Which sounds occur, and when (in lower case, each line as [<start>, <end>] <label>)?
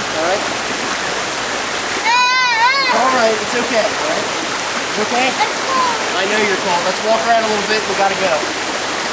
[0.00, 0.42] man speaking
[0.00, 9.12] rain on surface
[2.04, 2.94] sobbing
[2.83, 4.22] man speaking
[4.94, 6.01] kid speaking
[5.02, 5.59] man speaking
[6.17, 8.52] man speaking